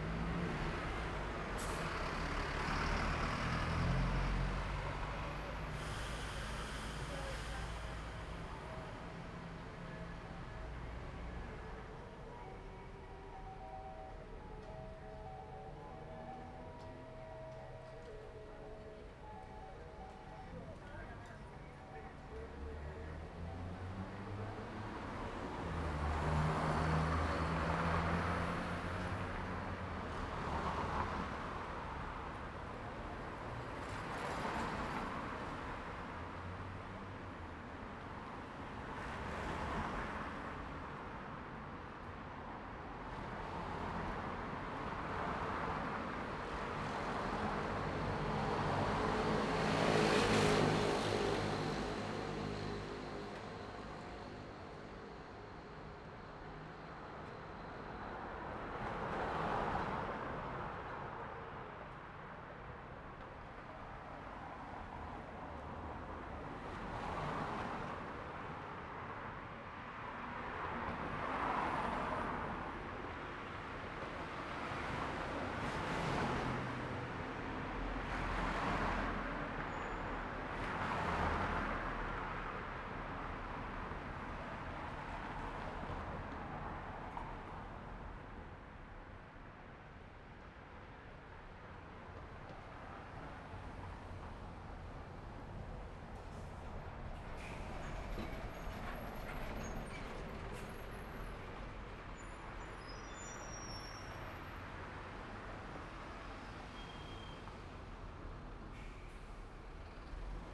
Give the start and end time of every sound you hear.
[0.00, 7.75] car
[0.00, 7.75] car wheels rolling
[0.00, 11.79] bus
[0.00, 11.79] bus engine accelerating
[1.52, 2.25] bus compressor
[5.62, 8.75] bus compressor
[7.95, 25.81] music
[18.49, 22.32] people talking
[22.32, 29.42] car engine accelerating
[22.32, 52.31] car
[25.42, 52.31] car wheels rolling
[33.72, 35.52] car engine accelerating
[46.53, 56.25] motorcycle
[46.53, 56.25] motorcycle engine accelerating
[56.25, 96.63] car
[56.25, 96.63] car wheels rolling
[77.68, 79.52] car engine accelerating
[95.97, 104.58] bus brakes
[95.97, 110.54] bus
[96.18, 96.72] bus compressor
[97.18, 97.58] bus compressor
[98.48, 101.75] bus wheels rolling
[100.35, 100.98] bus compressor
[104.11, 107.36] car
[104.11, 107.36] car wheels rolling
[104.52, 109.88] bus engine idling
[108.35, 109.88] bus compressor
[109.88, 110.54] bus engine accelerating

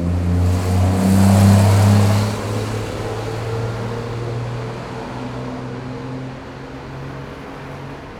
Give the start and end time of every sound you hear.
[0.00, 8.20] bus
[0.00, 8.20] bus engine accelerating
[4.59, 8.20] car
[4.59, 8.20] car wheels rolling

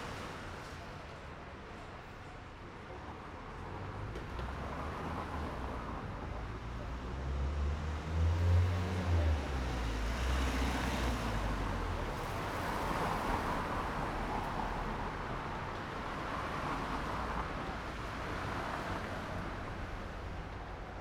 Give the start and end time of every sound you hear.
[0.00, 0.69] motorcycle
[0.00, 0.69] motorcycle wheels rolling
[0.00, 21.02] car
[0.00, 21.02] car wheels rolling
[4.97, 12.68] car engine accelerating

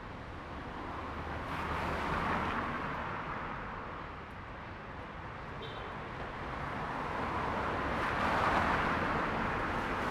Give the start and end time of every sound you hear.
[0.00, 0.34] bus
[0.00, 0.34] bus engine accelerating
[0.00, 10.11] car
[0.00, 10.11] car wheels rolling
[5.49, 5.80] unclassified sound

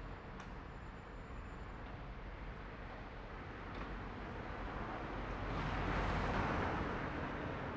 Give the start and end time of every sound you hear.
[4.73, 7.76] car
[4.73, 7.76] car wheels rolling
[6.99, 7.76] motorcycle
[6.99, 7.76] motorcycle engine accelerating

